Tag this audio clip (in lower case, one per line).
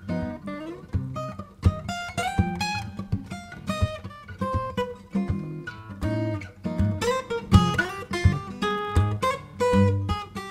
plucked string instrument
playing acoustic guitar
strum
musical instrument
acoustic guitar
music
guitar